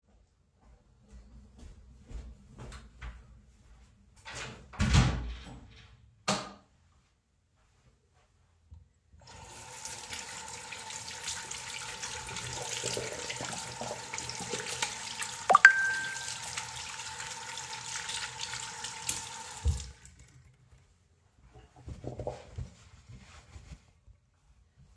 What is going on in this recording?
I walked into the bathroom, closed the door behind me and turned on the light. After that, while I was washing my hands, I received a notification on my phone. I then dryed off my hands with a towel